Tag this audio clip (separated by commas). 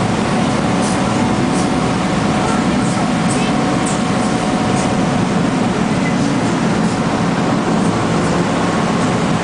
Speech, Music, Boat